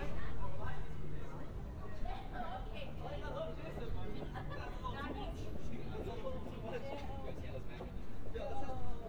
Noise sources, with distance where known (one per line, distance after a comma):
person or small group talking, near